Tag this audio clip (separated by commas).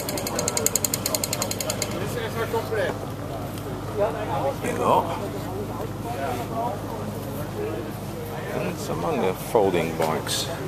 Speech, Bicycle, Vehicle